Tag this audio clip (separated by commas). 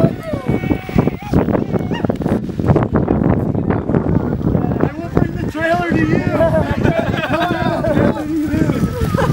Speech, Vehicle